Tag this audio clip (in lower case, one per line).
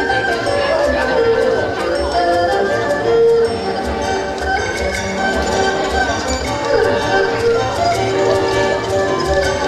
playing erhu